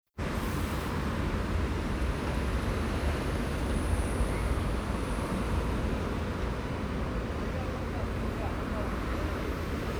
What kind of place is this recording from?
street